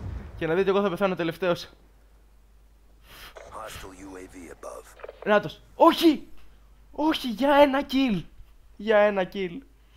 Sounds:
Speech

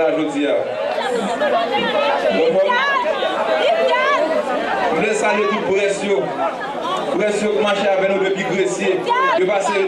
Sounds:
Speech

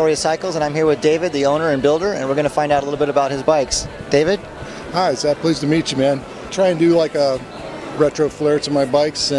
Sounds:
Music, Speech

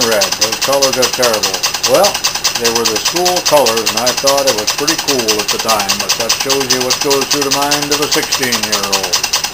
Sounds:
Engine, Speech

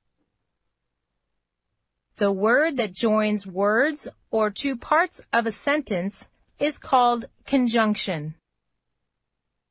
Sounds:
Speech

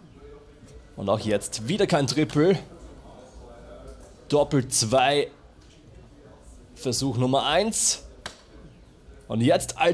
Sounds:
playing darts

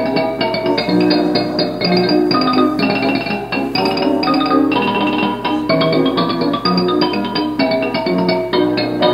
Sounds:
xylophone

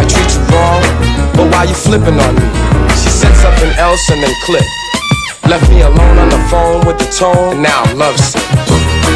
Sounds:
Music, Rapping

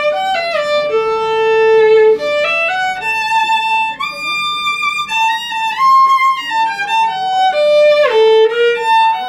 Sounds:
Speech, Music, Violin, Bowed string instrument, inside a small room, Musical instrument

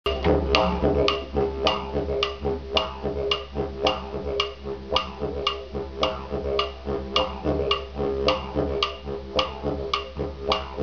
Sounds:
Music, Musical instrument, Didgeridoo

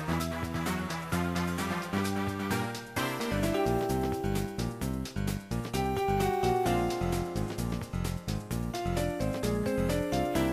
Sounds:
Funny music, Music

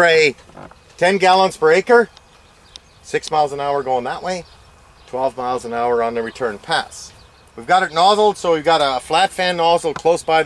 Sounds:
Speech

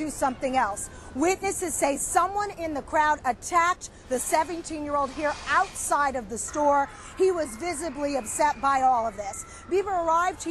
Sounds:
Speech

